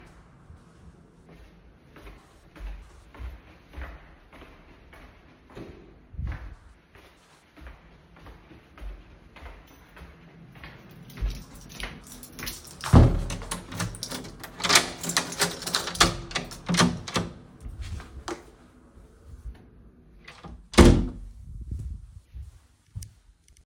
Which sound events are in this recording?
footsteps, keys, door